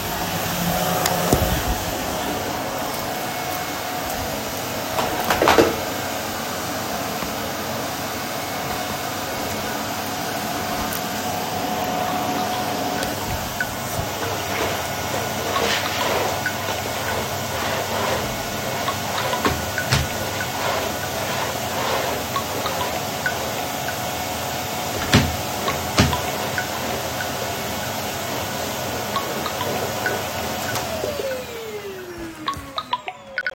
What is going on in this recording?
I was hovering, when m phone rang and I had to also open the window before picking the call